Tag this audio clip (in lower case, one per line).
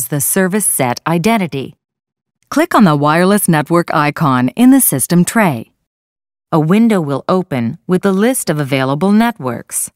speech